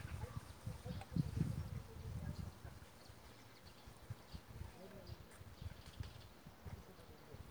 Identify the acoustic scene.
park